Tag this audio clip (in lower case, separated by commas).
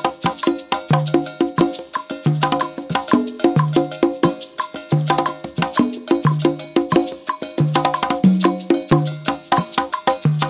wood block, music, percussion